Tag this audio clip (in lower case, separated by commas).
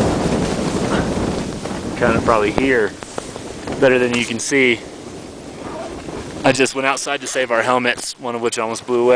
speech